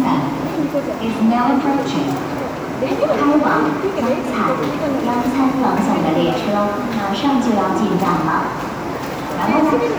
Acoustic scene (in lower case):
subway station